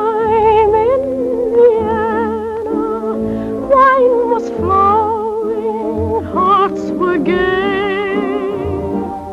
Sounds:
Opera, Singing

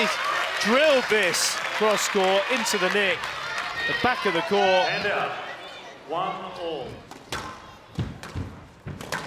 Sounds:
playing squash

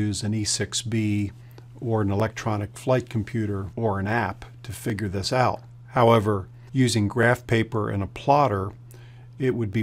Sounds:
Speech

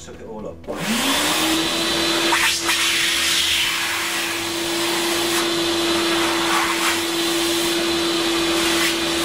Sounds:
Vacuum cleaner, Speech

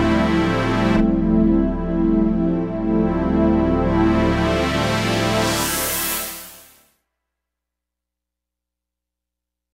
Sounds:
Music

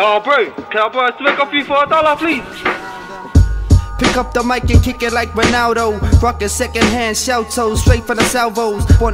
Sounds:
Music, Speech

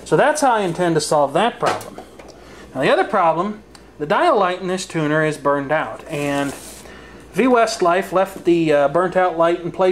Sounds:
Speech

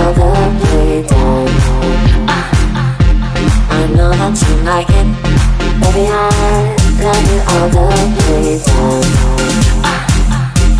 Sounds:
Dance music

